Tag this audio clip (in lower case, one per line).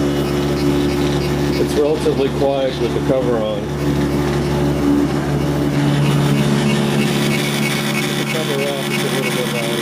printer
speech